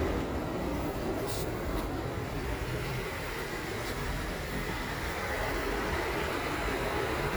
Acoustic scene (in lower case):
park